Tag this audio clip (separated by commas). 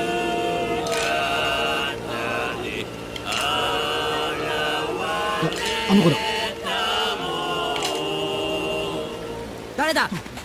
Speech